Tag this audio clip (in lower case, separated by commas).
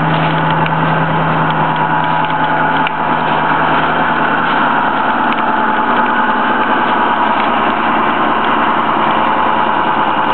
vehicle, truck